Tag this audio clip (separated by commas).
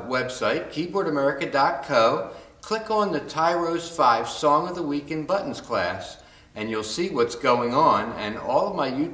Speech